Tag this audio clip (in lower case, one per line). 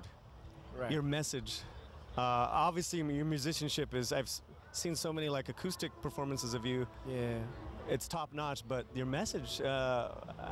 speech